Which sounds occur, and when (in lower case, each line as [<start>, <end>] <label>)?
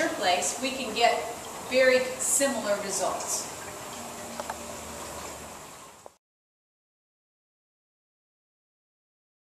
[0.00, 3.39] narration
[0.00, 6.16] water
[0.00, 6.17] mechanisms
[1.70, 3.42] female speech
[4.92, 5.95] footsteps
[5.98, 6.09] tap